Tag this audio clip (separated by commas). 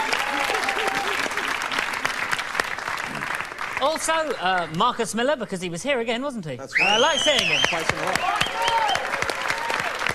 Speech